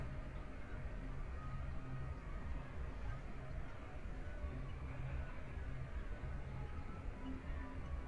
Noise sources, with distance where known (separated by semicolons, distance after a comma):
music from an unclear source